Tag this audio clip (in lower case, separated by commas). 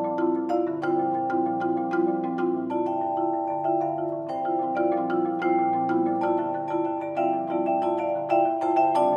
mallet percussion, xylophone, glockenspiel